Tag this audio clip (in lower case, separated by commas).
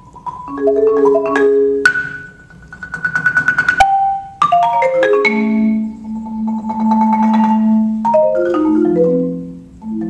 music